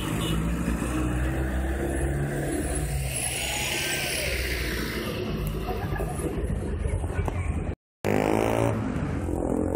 Vehicles driving by and some people making noises